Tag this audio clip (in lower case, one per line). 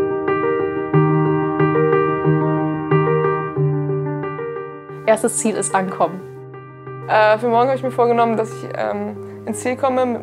speech
music